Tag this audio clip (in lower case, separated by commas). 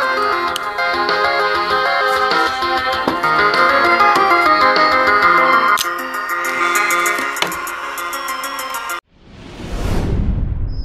music